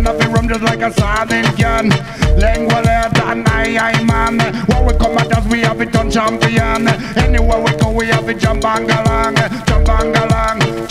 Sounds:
music

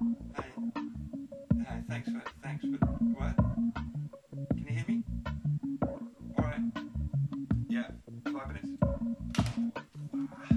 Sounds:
speech, music

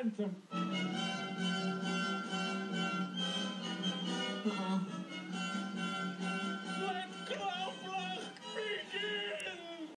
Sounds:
music, speech

